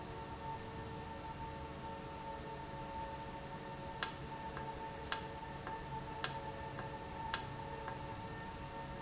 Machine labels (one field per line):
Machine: valve